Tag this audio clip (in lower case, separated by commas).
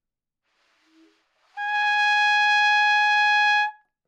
brass instrument, music, musical instrument, trumpet